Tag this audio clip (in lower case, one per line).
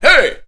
speech
man speaking
human voice